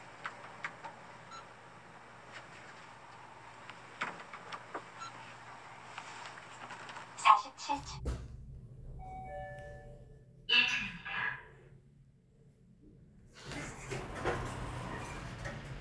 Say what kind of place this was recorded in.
elevator